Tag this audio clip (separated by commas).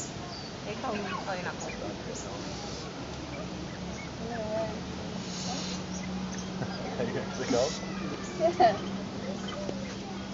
pheasant crowing